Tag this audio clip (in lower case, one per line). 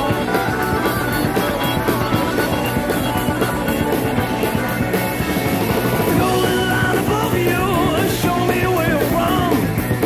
music